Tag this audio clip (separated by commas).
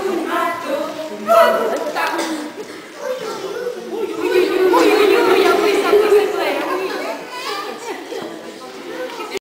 Speech